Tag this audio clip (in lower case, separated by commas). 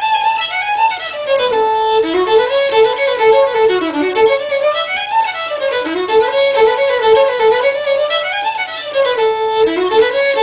violin, musical instrument, music